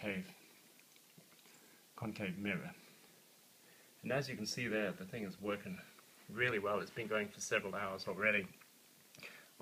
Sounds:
Speech, inside a small room

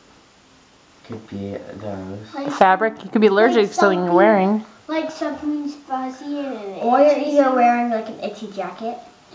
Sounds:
Child speech, inside a small room, Speech

